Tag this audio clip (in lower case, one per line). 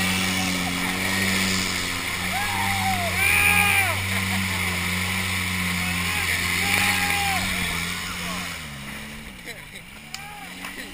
speech